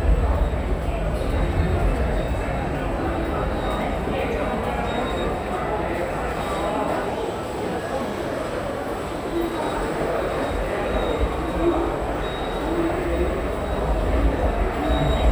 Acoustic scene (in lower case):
subway station